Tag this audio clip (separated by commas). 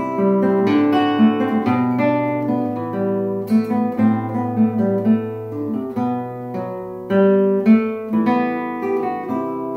Music